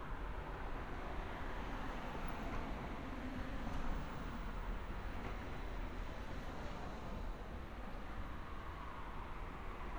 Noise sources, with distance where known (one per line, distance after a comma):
medium-sounding engine, far